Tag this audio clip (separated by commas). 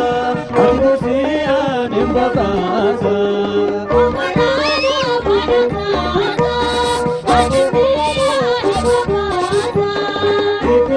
Music